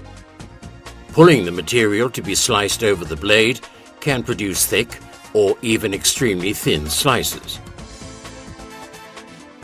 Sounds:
Music, Speech

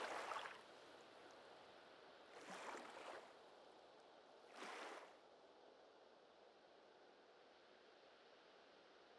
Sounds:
Vehicle, Boat

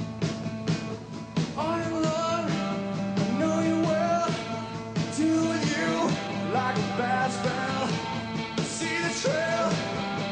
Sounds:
Music

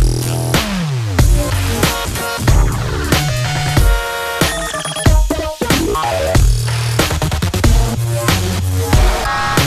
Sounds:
Music, Dubstep

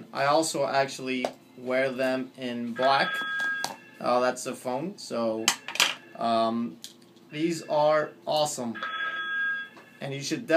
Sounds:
Speech

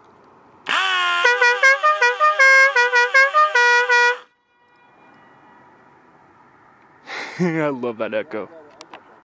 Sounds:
Speech, Music

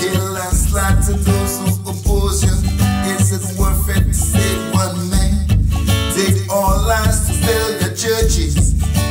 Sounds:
Music

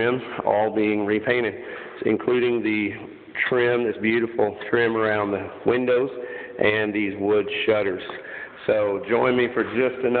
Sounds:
Speech

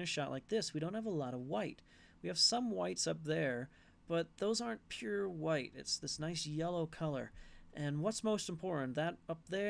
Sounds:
Speech

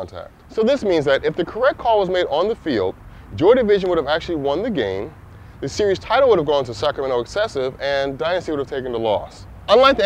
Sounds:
Speech

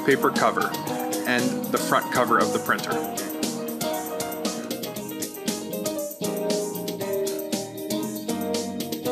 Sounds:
Music, Speech

